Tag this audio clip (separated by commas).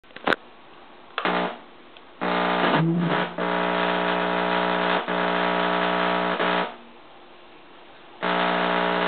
inside a small room